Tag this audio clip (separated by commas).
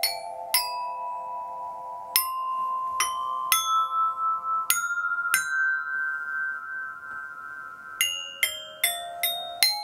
playing glockenspiel